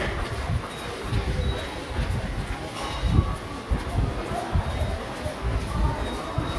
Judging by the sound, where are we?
in a subway station